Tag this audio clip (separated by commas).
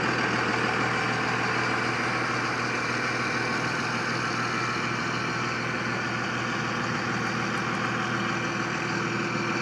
Vehicle